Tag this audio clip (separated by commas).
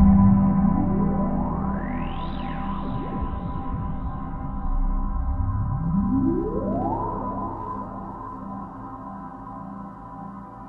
Music, Electronica, Electronic music, Ambient music